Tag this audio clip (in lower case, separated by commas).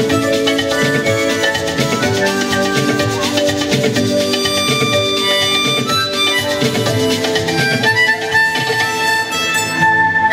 playing harmonica